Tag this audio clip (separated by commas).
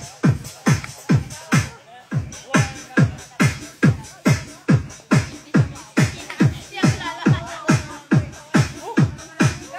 Electronica, Music, Speech